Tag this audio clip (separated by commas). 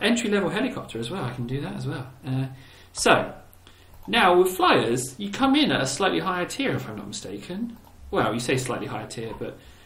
Speech